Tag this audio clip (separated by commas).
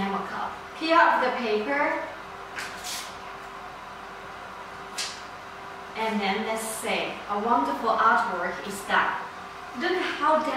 Speech